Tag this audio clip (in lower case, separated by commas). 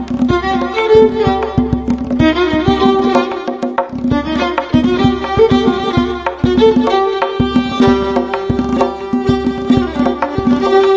violin, musical instrument, music